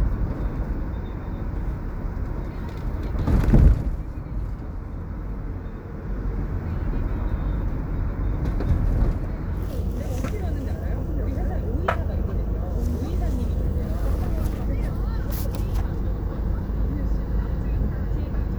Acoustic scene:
car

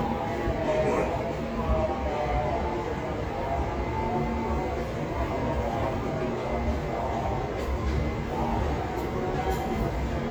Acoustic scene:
subway station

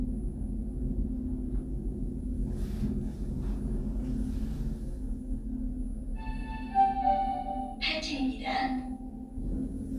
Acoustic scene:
elevator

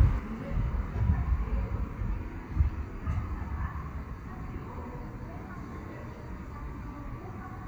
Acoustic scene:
street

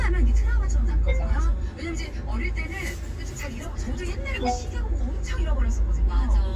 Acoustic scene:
car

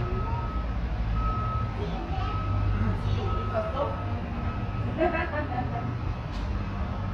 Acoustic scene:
residential area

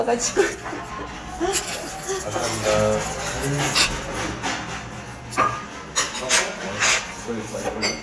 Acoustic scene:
restaurant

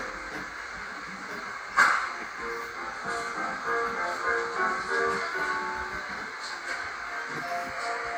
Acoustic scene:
cafe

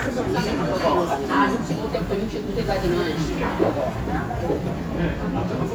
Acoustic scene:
restaurant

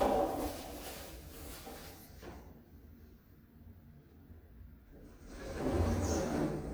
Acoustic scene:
elevator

